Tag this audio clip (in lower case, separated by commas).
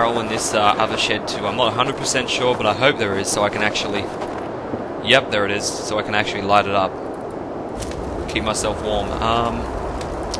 speech